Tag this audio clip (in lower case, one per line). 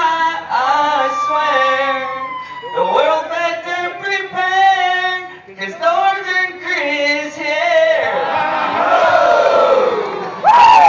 crowd